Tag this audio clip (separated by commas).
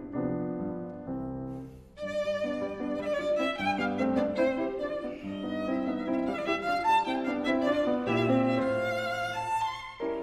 Musical instrument, Violin, Music